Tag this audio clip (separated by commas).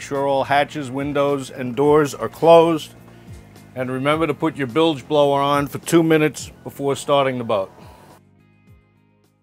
Speech